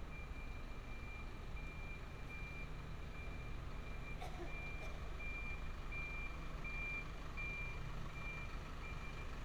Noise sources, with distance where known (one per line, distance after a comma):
car alarm